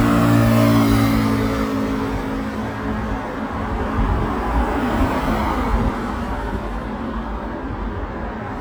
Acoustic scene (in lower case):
street